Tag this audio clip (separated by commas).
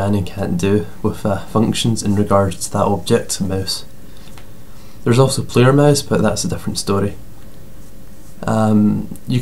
Speech